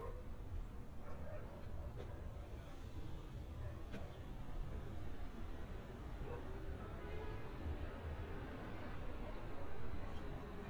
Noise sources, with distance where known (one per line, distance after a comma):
dog barking or whining, far